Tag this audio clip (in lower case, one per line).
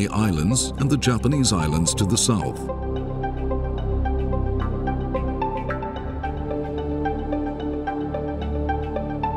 speech
music